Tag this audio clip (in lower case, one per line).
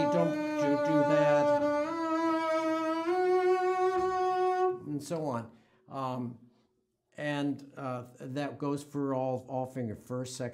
playing double bass